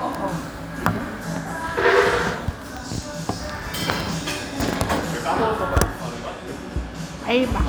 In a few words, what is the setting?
cafe